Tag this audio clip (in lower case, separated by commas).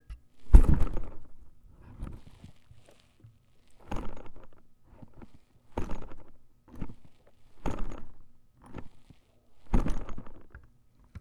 thud